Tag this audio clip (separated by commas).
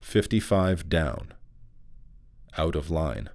Speech, man speaking, Human voice